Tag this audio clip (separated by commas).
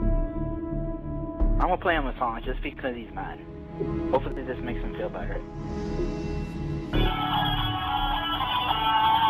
Music, Speech